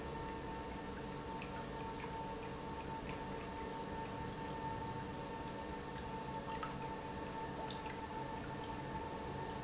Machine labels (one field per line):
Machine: pump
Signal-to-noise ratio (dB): 0 dB